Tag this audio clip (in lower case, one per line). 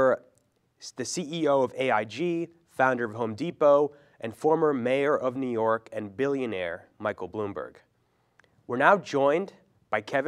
speech